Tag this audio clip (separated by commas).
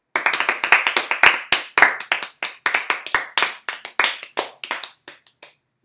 Hands, Clapping